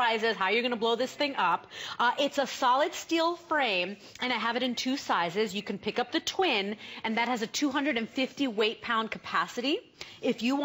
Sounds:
Speech

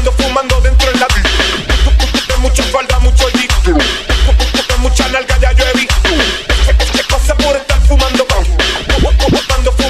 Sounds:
Music, Music of Latin America, Hip hop music, Electronic dance music, Electronic music

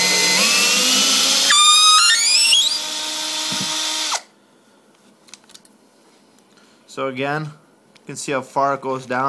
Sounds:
Tools, Power tool, Drill

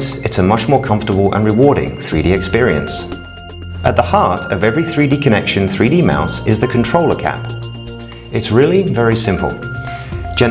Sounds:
Speech, Music

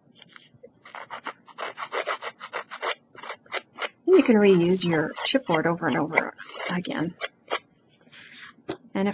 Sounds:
Scissors, Speech

